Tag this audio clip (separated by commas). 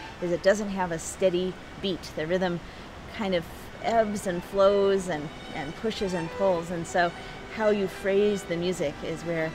Speech, Music